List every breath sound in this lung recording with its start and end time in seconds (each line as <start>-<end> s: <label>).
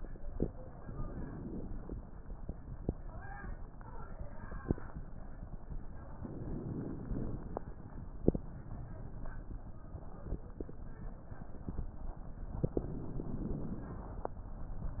0.66-1.93 s: inhalation
6.15-7.62 s: inhalation
12.67-14.29 s: inhalation